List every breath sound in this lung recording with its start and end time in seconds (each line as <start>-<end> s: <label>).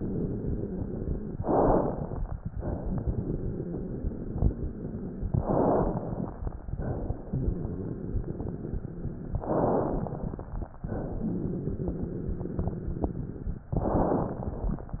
1.33-2.41 s: crackles
1.35-2.43 s: inhalation
2.54-5.28 s: exhalation
2.54-5.28 s: crackles
5.31-6.40 s: inhalation
5.31-6.40 s: crackles
6.60-9.41 s: exhalation
6.60-9.41 s: crackles
9.43-10.51 s: inhalation
9.43-10.51 s: crackles
10.87-13.68 s: exhalation
10.87-13.68 s: crackles
13.76-14.84 s: inhalation
13.76-14.84 s: crackles